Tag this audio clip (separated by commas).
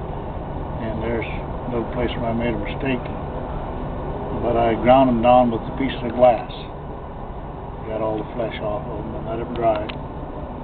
outside, urban or man-made, Speech